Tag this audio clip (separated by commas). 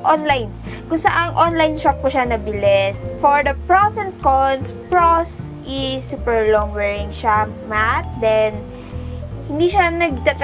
Speech, Music